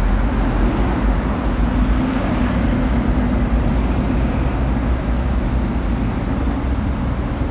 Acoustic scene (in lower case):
street